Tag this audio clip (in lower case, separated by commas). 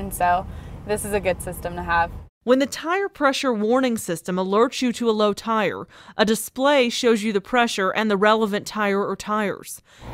speech